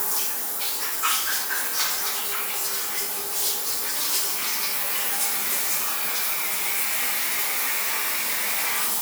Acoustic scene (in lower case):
restroom